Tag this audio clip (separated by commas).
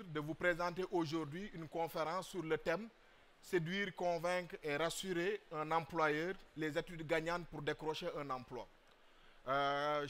Speech